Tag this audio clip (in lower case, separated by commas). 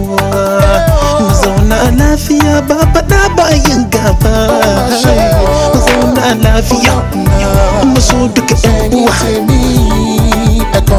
music, music of africa